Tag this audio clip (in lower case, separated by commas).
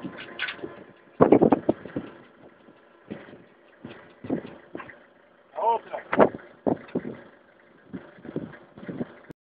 speech